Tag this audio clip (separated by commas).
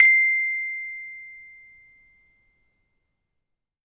Mallet percussion, Percussion, Music, Musical instrument, xylophone